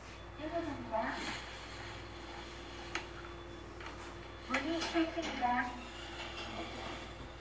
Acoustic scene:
elevator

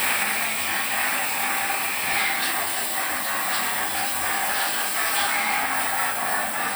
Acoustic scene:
restroom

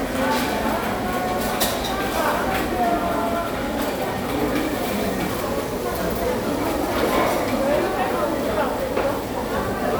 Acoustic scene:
restaurant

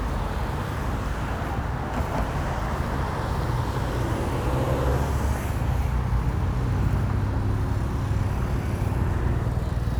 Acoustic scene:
street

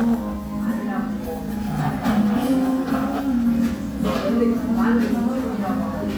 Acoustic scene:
cafe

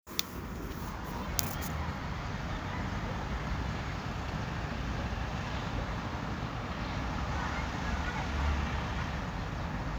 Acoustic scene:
residential area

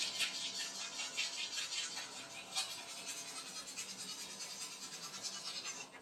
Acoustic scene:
restroom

